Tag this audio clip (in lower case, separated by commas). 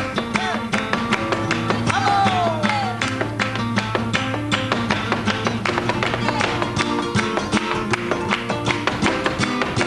strum, plucked string instrument, music, musical instrument, guitar, flamenco